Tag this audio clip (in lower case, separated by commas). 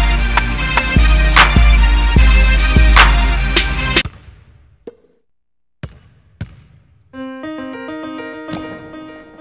music, basketball bounce